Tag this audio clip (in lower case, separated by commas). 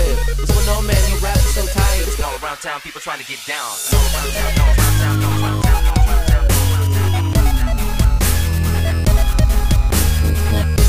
dubstep, music